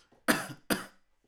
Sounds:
respiratory sounds
cough

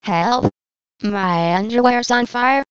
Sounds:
human voice
speech synthesizer
speech

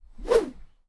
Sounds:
swish

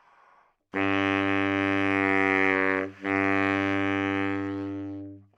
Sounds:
music
musical instrument
woodwind instrument

